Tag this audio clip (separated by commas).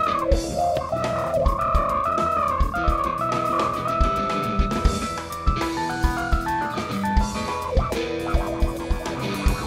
Plucked string instrument, Musical instrument, Vibraphone, Drum kit, Guitar, Percussion, Drum, Music